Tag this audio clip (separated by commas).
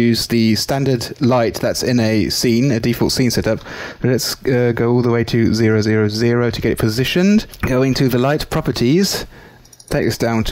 Speech